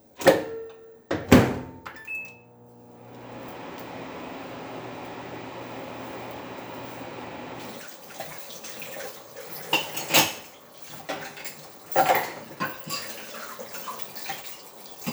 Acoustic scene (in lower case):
kitchen